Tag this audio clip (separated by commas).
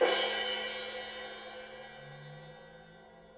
Crash cymbal, Cymbal, Musical instrument, Music, Percussion